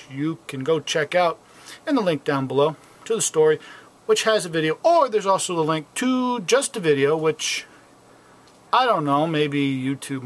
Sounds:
speech

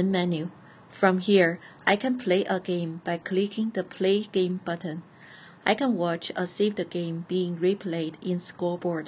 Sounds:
speech

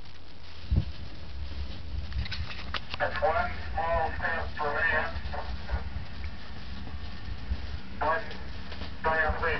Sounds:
speech

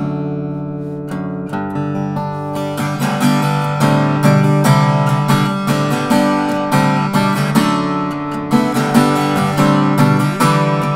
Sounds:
music
plucked string instrument
acoustic guitar
strum
musical instrument
guitar

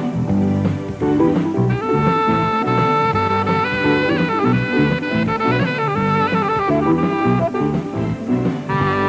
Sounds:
music

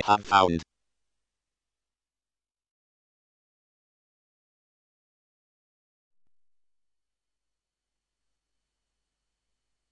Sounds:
speech synthesizer

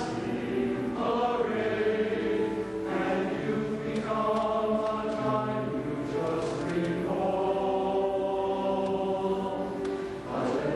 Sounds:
music

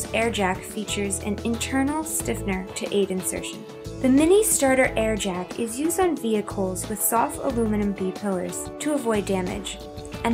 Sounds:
speech
music

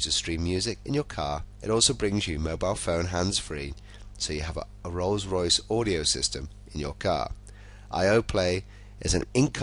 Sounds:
speech

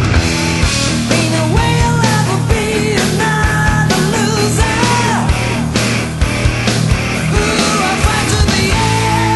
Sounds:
music

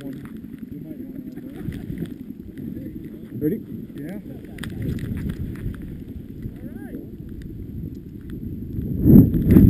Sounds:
speech

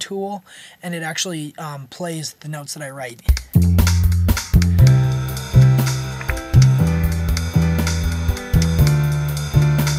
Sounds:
speech
music

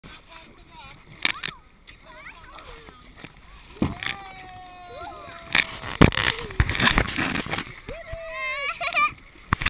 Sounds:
water vehicle
speech
canoe

